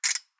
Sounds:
Ratchet, Mechanisms

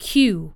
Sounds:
Human voice, Speech, woman speaking

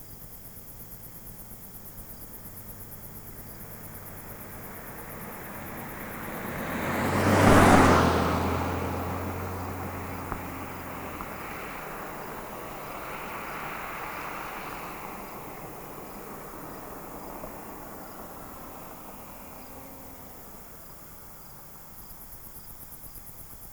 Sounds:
Insect, Animal, Cricket, Wild animals

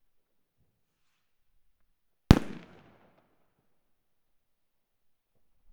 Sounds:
Fireworks, Explosion

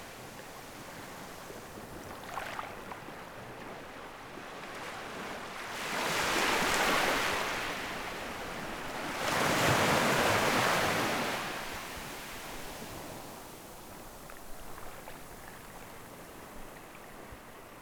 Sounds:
Waves, Water, Ocean

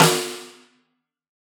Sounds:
Drum, Musical instrument, Music, Percussion, Snare drum

